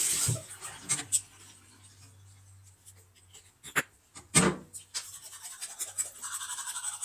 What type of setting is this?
restroom